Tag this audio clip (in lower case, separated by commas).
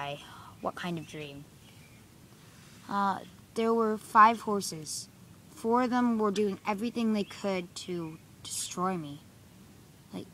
animal, speech